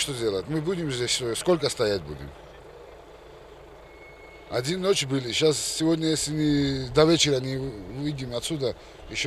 Man speaking continuously